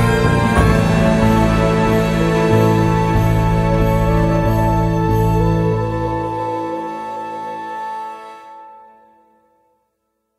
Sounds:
Music

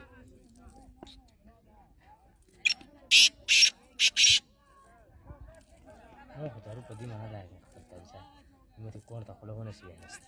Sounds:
francolin calling

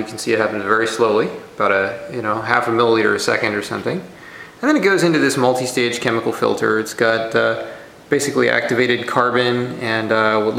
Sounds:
Speech

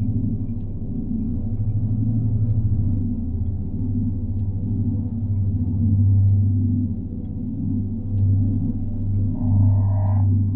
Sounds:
warbler chirping

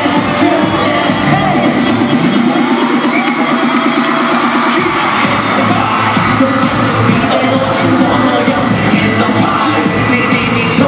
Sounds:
Music

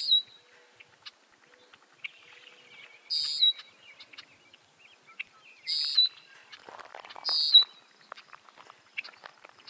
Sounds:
Bird

